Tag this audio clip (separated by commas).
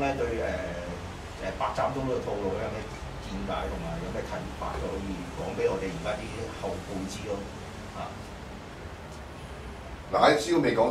Speech